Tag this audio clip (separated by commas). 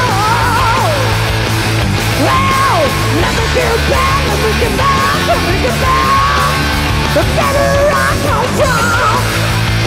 Music, Rock and roll